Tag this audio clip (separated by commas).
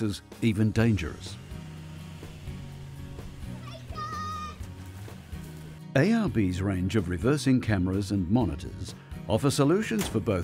Music, Speech